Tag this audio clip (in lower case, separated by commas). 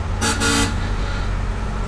alarm, vehicle, roadway noise, honking, motor vehicle (road), car